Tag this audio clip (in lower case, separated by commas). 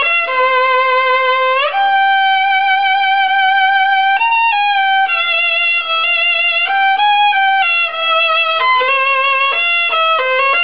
bowed string instrument, fiddle